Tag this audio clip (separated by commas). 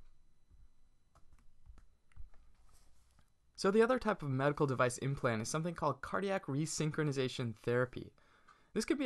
Speech